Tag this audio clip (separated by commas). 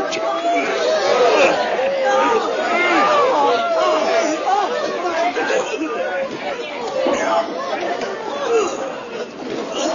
inside a public space, Speech, Chatter